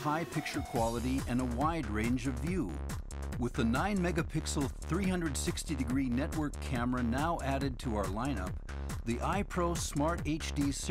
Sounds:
Music, Speech

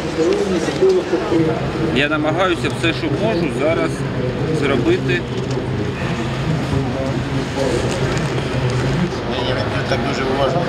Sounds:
Speech

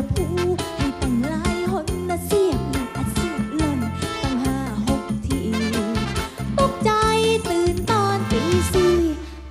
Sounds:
Music

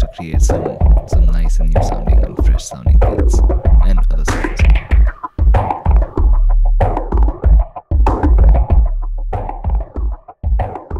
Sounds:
Music, Speech

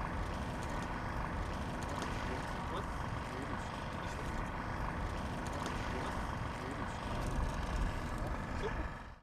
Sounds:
Speech, Car passing by

